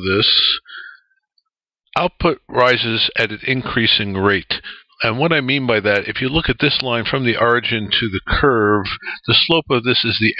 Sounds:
Speech

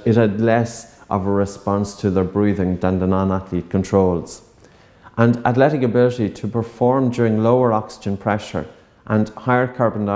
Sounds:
Speech, inside a small room

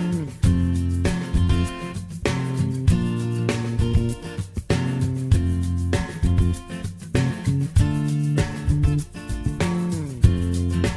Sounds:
Music

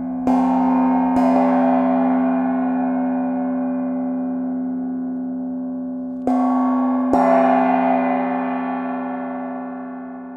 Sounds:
playing gong

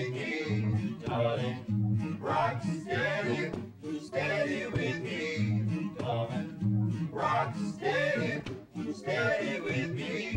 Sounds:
Country, Ska, Music

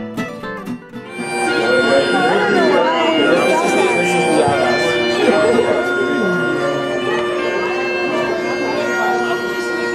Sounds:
Music, Speech

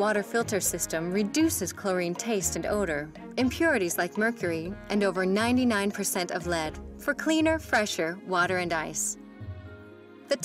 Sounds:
Speech, Music

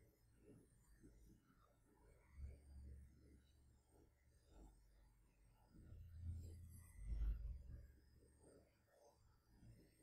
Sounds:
Silence

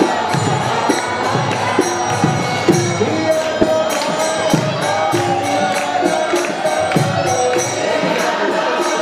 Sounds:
Speech, Music

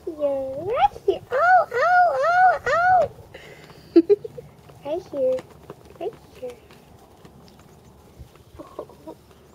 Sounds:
Speech

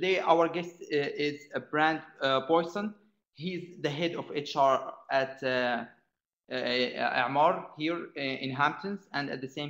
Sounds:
Speech

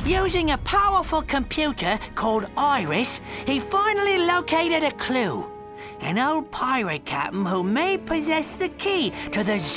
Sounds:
Speech, Music

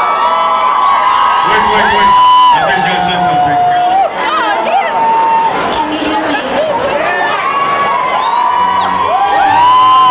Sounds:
Speech

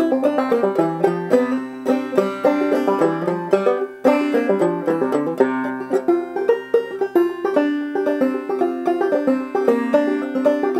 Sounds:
Music

